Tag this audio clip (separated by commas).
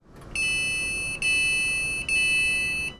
Train, Rail transport, Vehicle